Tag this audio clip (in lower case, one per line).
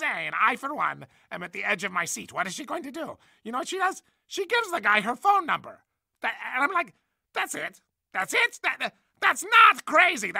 speech